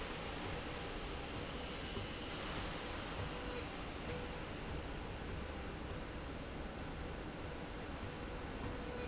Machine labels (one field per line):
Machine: slide rail